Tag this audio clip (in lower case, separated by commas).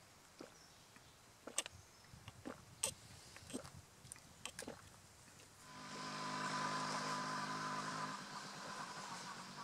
insect